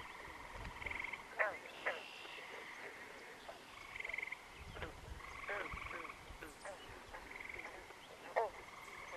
Several frogs croaking and chirping